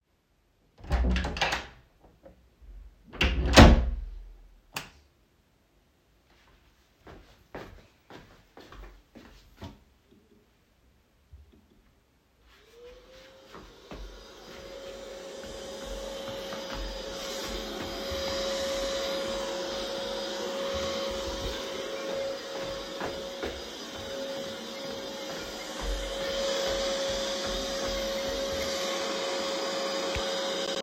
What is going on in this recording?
I opened the living room door and flipped the light switch. I walked to the vacuum, turned it on, and began cleaning the floor. While I was walking and vacuuming, my phone started ringing